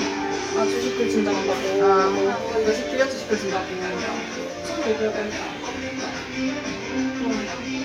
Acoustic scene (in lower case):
restaurant